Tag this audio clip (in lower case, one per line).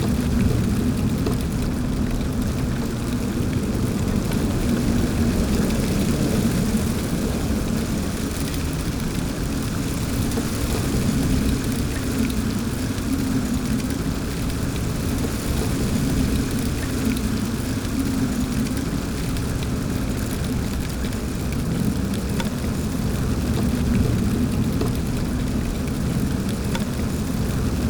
rain
water